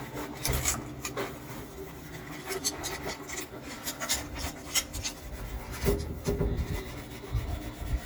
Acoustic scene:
kitchen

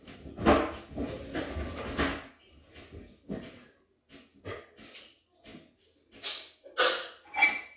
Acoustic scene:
restroom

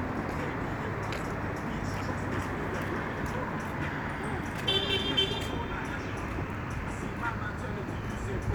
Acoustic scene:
street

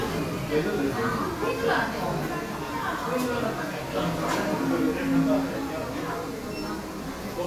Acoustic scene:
crowded indoor space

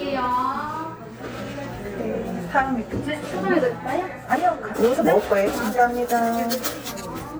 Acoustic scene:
cafe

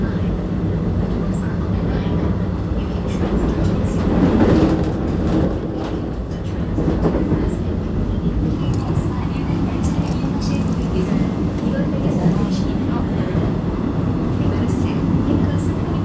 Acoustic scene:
subway train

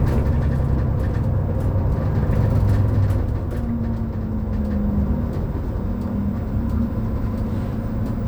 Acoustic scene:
bus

